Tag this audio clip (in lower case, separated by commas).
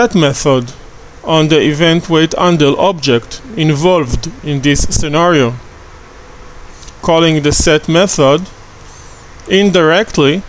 speech